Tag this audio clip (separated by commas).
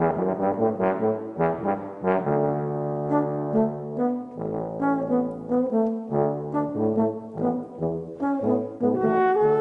Music